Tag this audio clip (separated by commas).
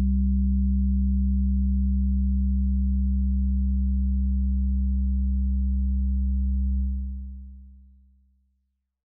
Sound effect